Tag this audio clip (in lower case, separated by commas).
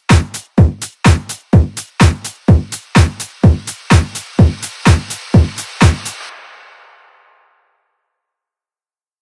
music